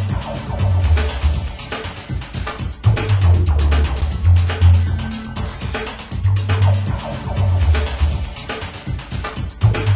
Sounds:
music

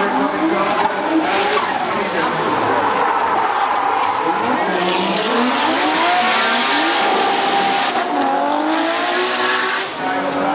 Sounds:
car, auto racing, vehicle

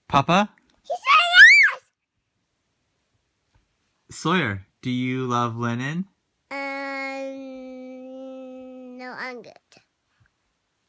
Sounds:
speech, child speech

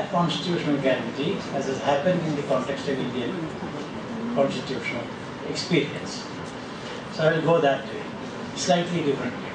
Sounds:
speech, male speech, monologue

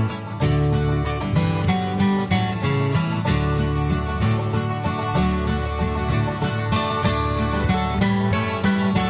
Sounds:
country, music, bluegrass

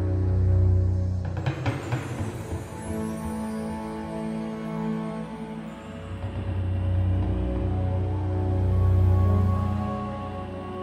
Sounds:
music

